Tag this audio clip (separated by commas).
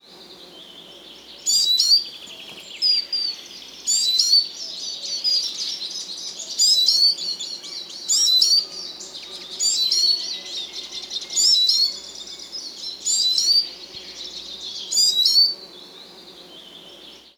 Insect, Wild animals, Animal